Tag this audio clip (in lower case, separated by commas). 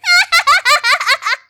laughter, human voice